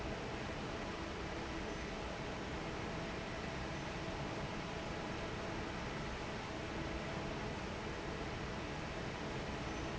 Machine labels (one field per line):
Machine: fan